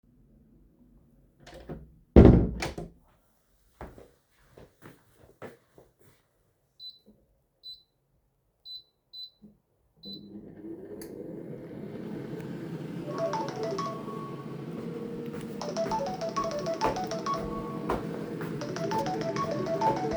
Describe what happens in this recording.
I opened the door to the kitchen and walked to the microwave to turn it on, then my phone started ringing at the same time. I walked towards my phone to pick it up.